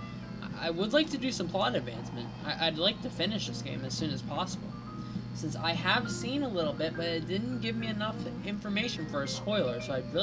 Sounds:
speech, music

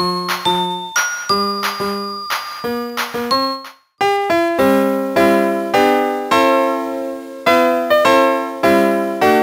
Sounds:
music

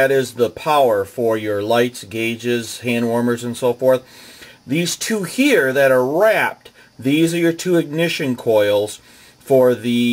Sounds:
speech

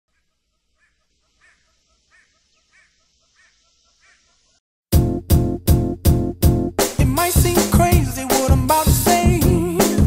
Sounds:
music

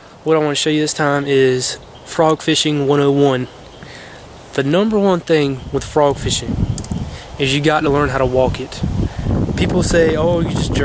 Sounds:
speech

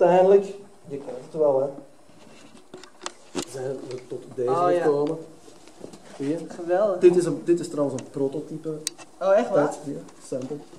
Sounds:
speech, inside a large room or hall

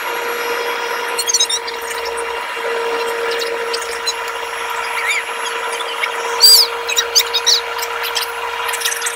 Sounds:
aircraft, vehicle

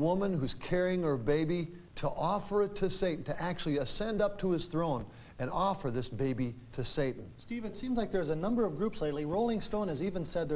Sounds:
speech

